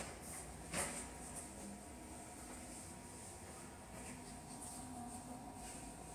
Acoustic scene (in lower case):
subway station